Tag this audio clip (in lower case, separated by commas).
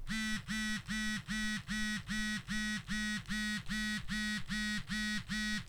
telephone, alarm